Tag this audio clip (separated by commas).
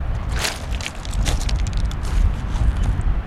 Walk